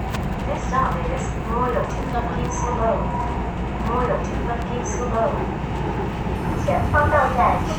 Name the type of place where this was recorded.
subway train